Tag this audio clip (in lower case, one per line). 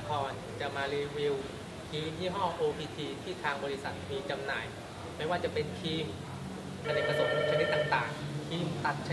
speech